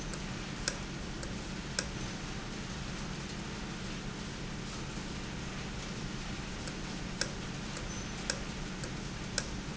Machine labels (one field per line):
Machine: valve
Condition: normal